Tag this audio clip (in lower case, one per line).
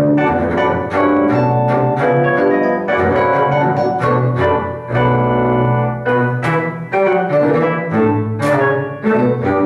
playing double bass